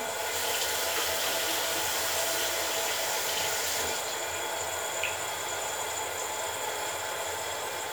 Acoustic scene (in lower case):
restroom